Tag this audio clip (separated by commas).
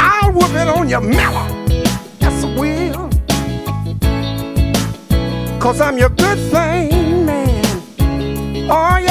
Music, Singing